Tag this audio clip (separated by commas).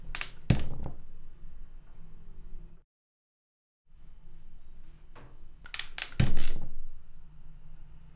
Fire